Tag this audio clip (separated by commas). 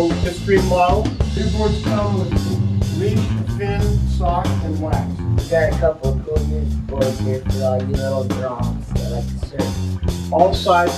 Speech, Music